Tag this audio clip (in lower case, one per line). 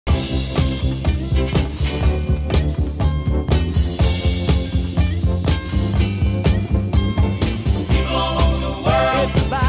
funk
music